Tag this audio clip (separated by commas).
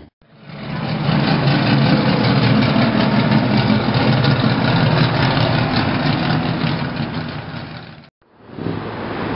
Car, Vehicle, outside, urban or man-made